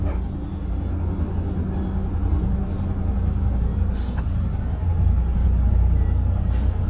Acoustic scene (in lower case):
bus